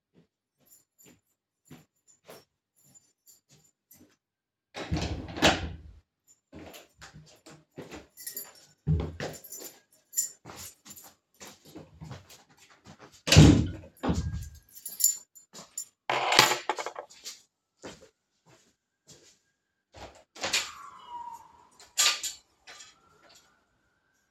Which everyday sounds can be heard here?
keys, door, footsteps, window